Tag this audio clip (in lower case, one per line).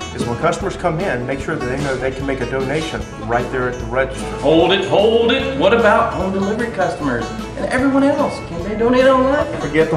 music
speech